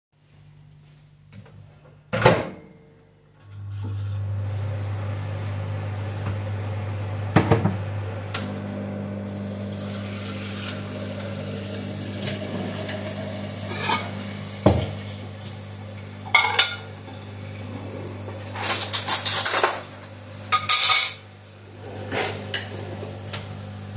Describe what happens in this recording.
I closed and started the microwave, then placed a glass container in the sink to fill it with water. While this was going on I went to the cabined, opened it and got some plates and I opened a drawer to get some cutlery, which I placed on the plates and in the end I closed the drawer where I got the cutlery from.